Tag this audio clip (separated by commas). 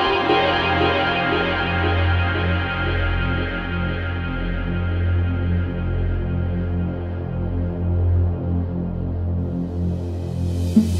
Electronic music, Music, Ambient music